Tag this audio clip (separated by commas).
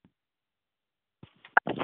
Telephone, Alarm